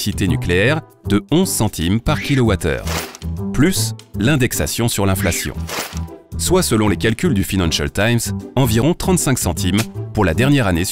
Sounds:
speech
music

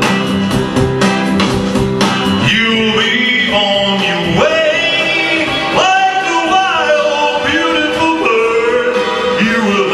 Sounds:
music

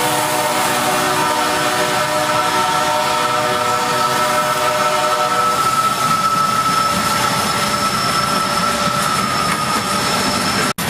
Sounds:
rail transport
clickety-clack
railroad car
train
train horn

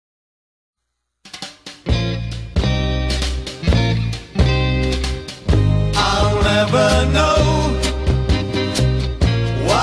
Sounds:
music

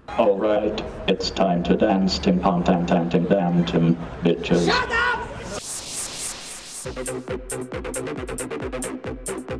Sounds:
music
speech

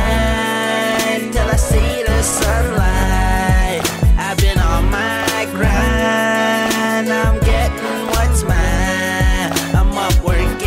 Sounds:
music

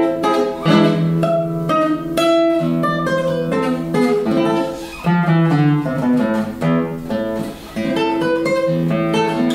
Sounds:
acoustic guitar
musical instrument
guitar
music

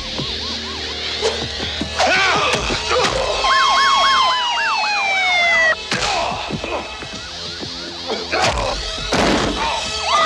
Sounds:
ambulance (siren)
siren
police car (siren)
emergency vehicle

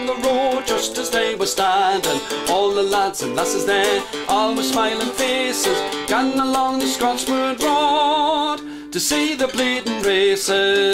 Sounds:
music

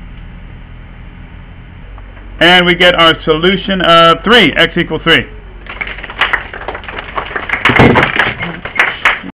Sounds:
inside a small room
speech

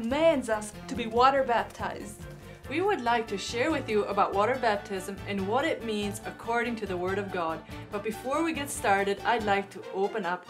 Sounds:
speech
music

